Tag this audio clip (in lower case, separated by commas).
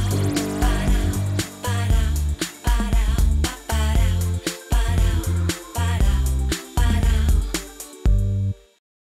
soundtrack music, rhythm and blues, music, pop music